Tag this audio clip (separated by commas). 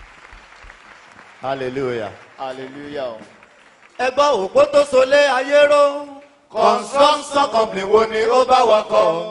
Speech